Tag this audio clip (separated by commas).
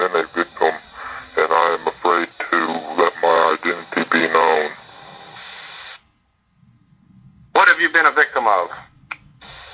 Speech